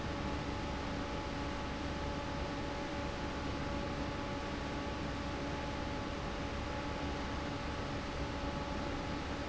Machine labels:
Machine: fan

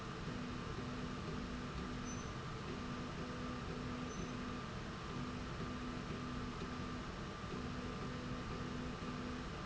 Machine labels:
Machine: slide rail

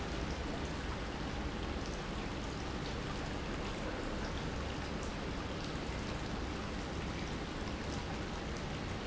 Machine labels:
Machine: pump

